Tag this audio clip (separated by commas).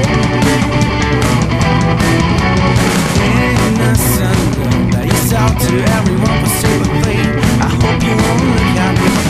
Music, Singing